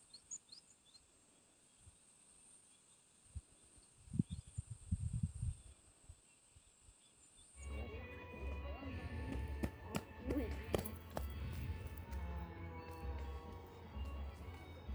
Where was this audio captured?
in a park